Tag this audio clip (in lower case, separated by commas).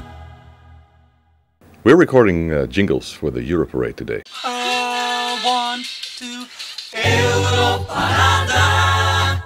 male singing, speech, music